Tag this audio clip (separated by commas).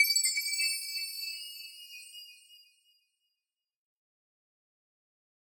Bell, Chime